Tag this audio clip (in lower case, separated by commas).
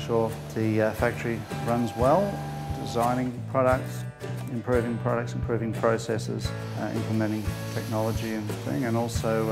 guitar, musical instrument, plucked string instrument, music, acoustic guitar, speech